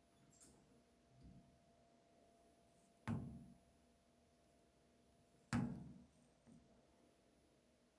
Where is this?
in an elevator